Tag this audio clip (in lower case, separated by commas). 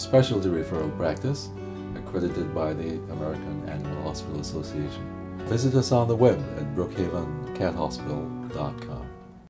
music, speech